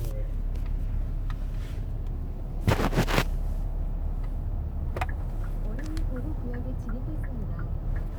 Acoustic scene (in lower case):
car